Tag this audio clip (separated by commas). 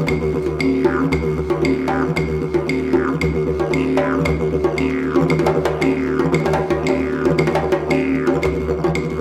playing didgeridoo